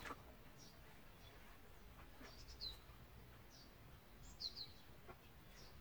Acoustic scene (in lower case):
park